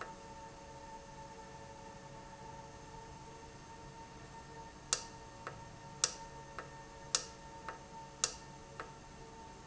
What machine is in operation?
valve